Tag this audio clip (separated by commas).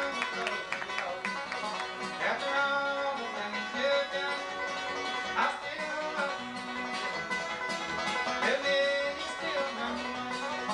Guitar, playing banjo, Acoustic guitar, Plucked string instrument, Banjo, Musical instrument, Music